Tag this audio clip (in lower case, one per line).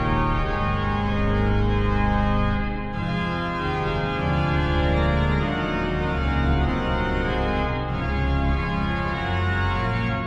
keyboard (musical)
musical instrument
music
piano